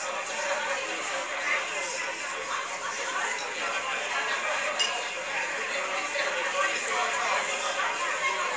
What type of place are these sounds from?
crowded indoor space